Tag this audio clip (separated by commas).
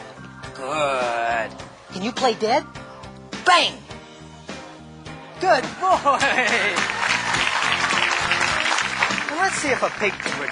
Speech, Music